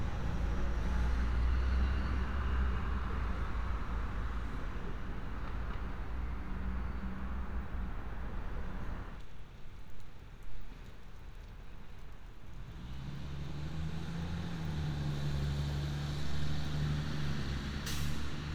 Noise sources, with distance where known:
large-sounding engine

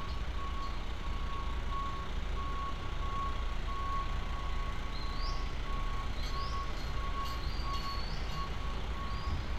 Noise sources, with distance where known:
reverse beeper

